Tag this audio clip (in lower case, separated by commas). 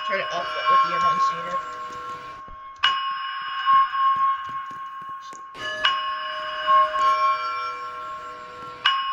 speech, music